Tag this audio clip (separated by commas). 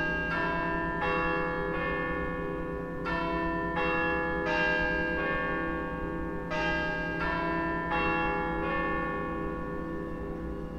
Church bell, church bell ringing